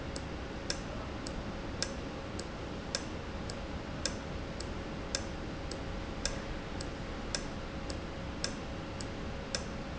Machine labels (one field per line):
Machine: valve